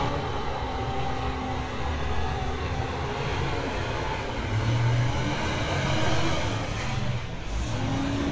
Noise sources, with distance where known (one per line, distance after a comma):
large-sounding engine